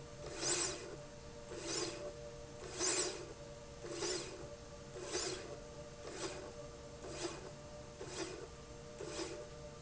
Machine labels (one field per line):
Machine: slide rail